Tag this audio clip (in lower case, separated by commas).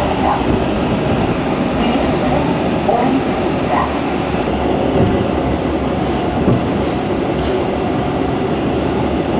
clickety-clack, train wagon, rail transport, train